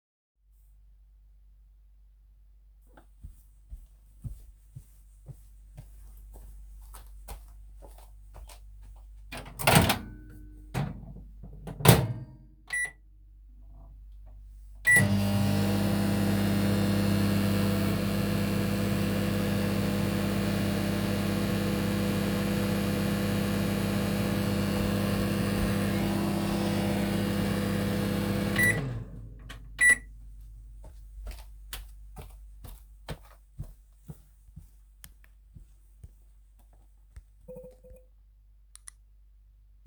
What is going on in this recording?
Microwave running while footsteps occur nearby.